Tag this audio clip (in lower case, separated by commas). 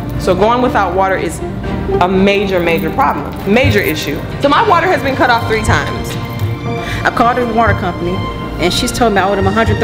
speech, music